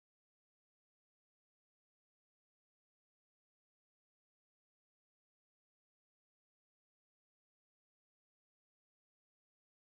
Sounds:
silence

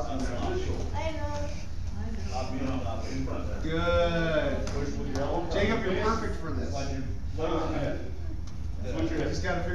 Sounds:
speech

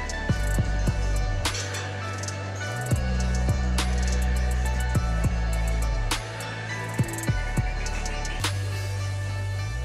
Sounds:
music

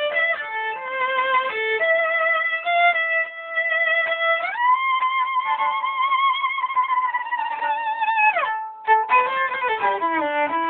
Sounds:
fiddle, musical instrument, music

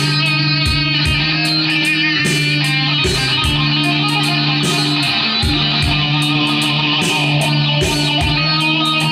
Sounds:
blues, musical instrument, strum, acoustic guitar, plucked string instrument, music, guitar

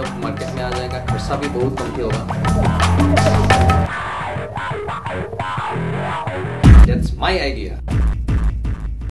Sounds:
speech, music

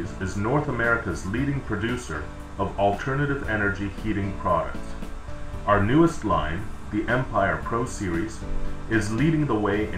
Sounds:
music, speech

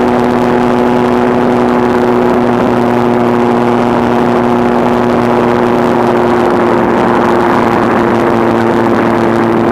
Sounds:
vehicle, accelerating

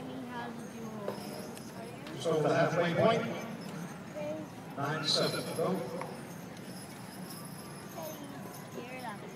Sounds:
speech

